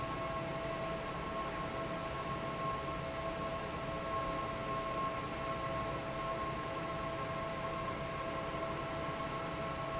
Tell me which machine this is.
fan